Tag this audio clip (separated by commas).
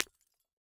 Shatter, Glass